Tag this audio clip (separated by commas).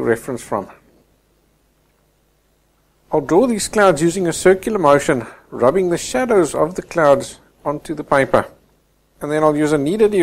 Speech